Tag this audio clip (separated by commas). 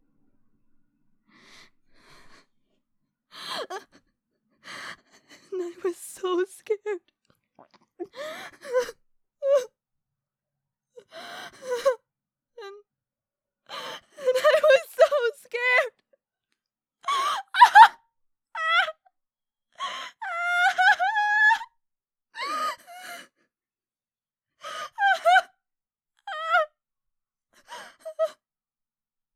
Human voice, Crying